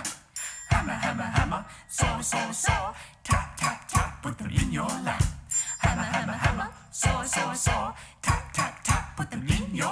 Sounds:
music

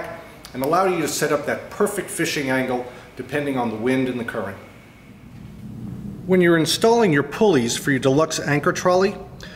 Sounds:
speech

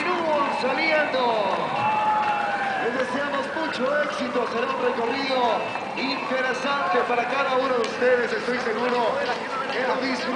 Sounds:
music
speech
run
outside, urban or man-made

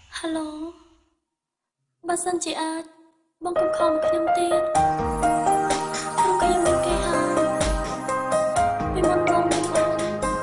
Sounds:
music
speech

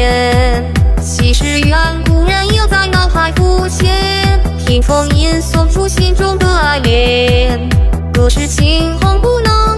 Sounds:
music

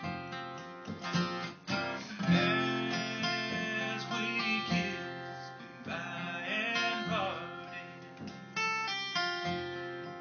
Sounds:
music

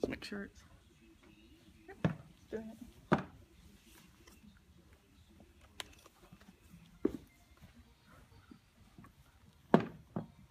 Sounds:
speech

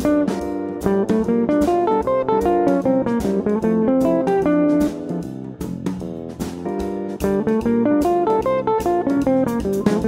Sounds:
guitar
musical instrument
music
plucked string instrument

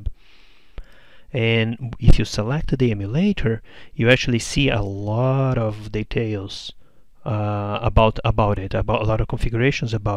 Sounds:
speech

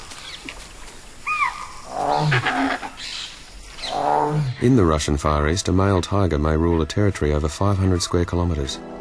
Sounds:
speech
roaring cats
animal
music
wild animals
lions growling

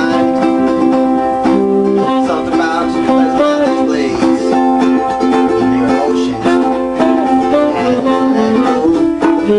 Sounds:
music
plucked string instrument
guitar
strum
musical instrument

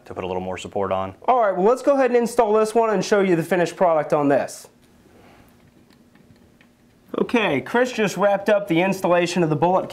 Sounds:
speech

